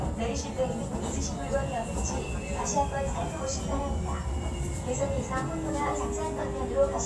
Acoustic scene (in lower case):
subway train